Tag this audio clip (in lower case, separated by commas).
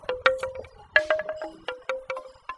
wind chime, chime, bell